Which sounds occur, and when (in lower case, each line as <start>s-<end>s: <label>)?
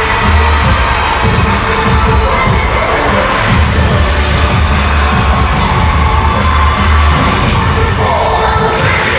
0.0s-9.1s: speech noise
0.0s-9.1s: music